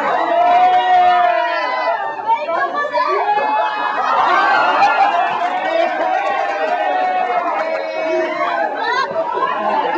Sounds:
speech

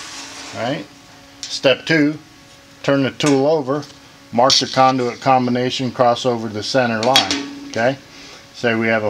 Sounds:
speech

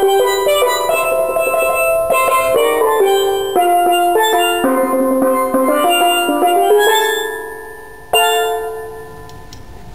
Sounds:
drum, musical instrument, music, steelpan

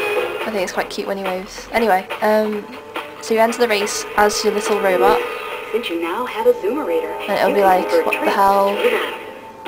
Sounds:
speech

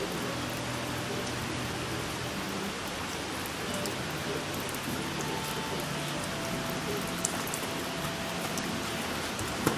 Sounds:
rain on surface, raindrop, rain

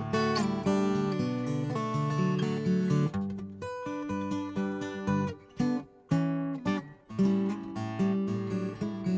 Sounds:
music

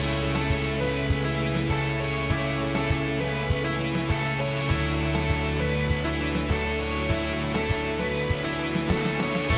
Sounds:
music

